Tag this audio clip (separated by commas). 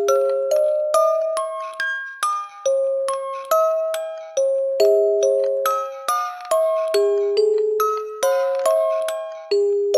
Music, Lullaby